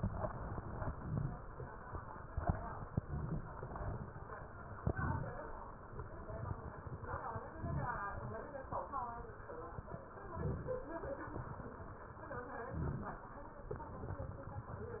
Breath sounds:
Inhalation: 0.89-1.44 s, 2.94-3.55 s, 4.84-5.45 s, 7.50-8.10 s, 10.30-10.91 s, 12.69-13.30 s

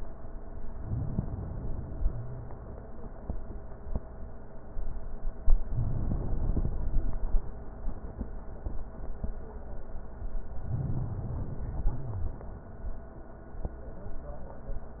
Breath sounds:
Inhalation: 0.73-2.06 s, 5.61-7.19 s, 10.52-11.98 s
Wheeze: 2.06-2.50 s, 11.98-12.37 s

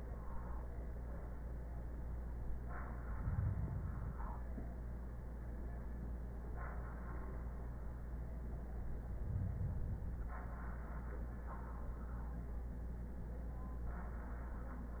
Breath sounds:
Inhalation: 2.87-4.37 s, 8.92-10.42 s

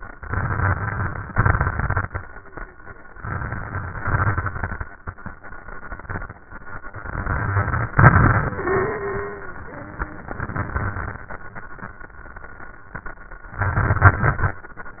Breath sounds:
Inhalation: 0.08-1.29 s, 3.15-4.01 s, 7.06-7.92 s, 10.21-11.25 s, 13.60-14.64 s
Exhalation: 1.34-2.20 s, 4.01-4.87 s, 7.93-9.65 s
Wheeze: 8.61-9.65 s
Crackles: 0.08-1.29 s, 1.34-2.20 s, 3.15-4.01 s, 4.01-4.87 s, 7.06-7.92 s, 7.93-9.65 s, 10.21-11.25 s, 13.60-14.64 s

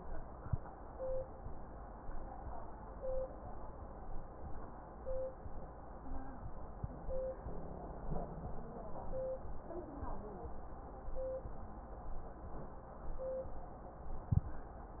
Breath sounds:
No breath sounds were labelled in this clip.

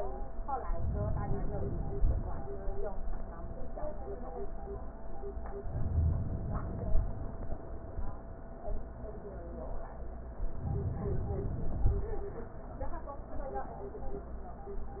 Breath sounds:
Inhalation: 0.70-2.54 s, 5.64-7.48 s, 10.42-12.26 s

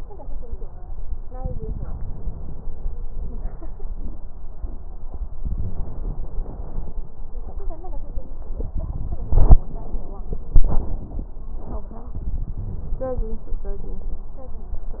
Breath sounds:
Inhalation: 1.36-3.07 s, 5.41-6.99 s
Crackles: 1.36-3.04 s, 5.40-6.97 s

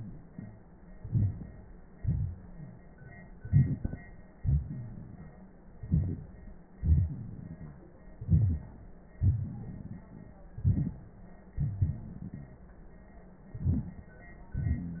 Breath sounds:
Inhalation: 0.93-1.69 s, 3.38-4.02 s, 5.85-6.52 s, 8.21-8.86 s, 10.62-11.19 s, 13.56-14.11 s
Exhalation: 1.97-2.85 s, 4.38-5.31 s, 6.84-7.89 s, 9.23-10.34 s, 11.59-12.65 s
Rhonchi: 4.41-4.97 s
Crackles: 3.38-4.02 s, 9.23-10.34 s, 13.56-14.11 s

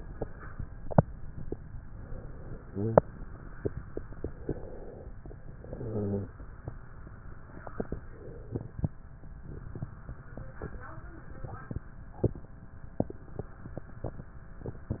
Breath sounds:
Inhalation: 1.84-3.81 s, 5.46-6.64 s
Exhalation: 3.81-5.28 s, 6.62-8.99 s

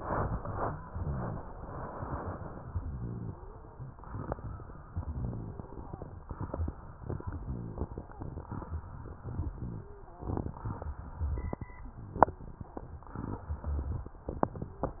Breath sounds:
Inhalation: 0.85-1.41 s, 2.66-3.42 s, 4.88-5.64 s, 7.21-7.97 s, 9.20-9.96 s, 11.94-12.70 s
Rhonchi: 0.85-1.41 s, 2.66-3.42 s, 4.88-5.64 s, 7.21-7.97 s, 9.20-9.96 s, 11.94-12.70 s

